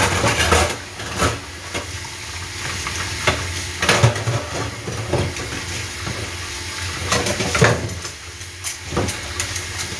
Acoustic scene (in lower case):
kitchen